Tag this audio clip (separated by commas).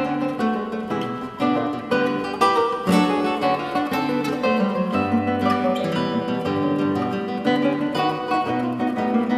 Guitar, Music, Plucked string instrument, Musical instrument, Strum